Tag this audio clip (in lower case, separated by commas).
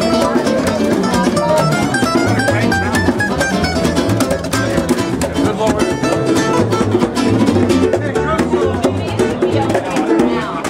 percussion, drum